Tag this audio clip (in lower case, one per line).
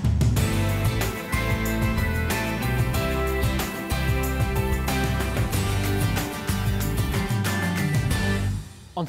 music
speech